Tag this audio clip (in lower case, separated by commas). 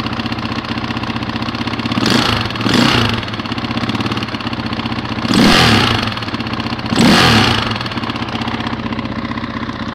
vehicle, vroom, heavy engine (low frequency)